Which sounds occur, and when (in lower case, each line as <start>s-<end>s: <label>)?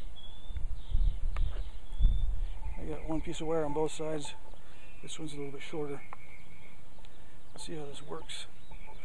0.0s-9.0s: wind
0.1s-4.2s: chirp
0.5s-0.6s: tick
1.3s-1.4s: tick
1.4s-1.7s: surface contact
2.0s-2.0s: tick
2.3s-2.5s: breathing
2.7s-4.3s: male speech
2.9s-2.9s: tick
4.4s-4.5s: tick
4.6s-4.9s: breathing
4.6s-6.8s: chirp
5.0s-6.0s: male speech
6.1s-6.1s: tick
7.0s-7.0s: tick
7.0s-7.3s: breathing
7.4s-8.4s: male speech
7.5s-7.6s: tick
7.6s-9.0s: chirp
8.6s-8.9s: surface contact